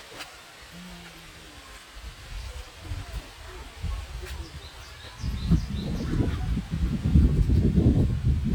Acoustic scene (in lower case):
park